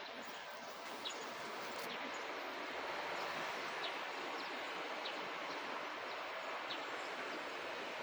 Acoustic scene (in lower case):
park